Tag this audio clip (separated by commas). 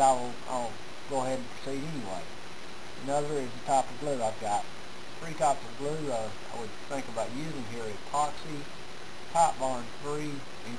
Speech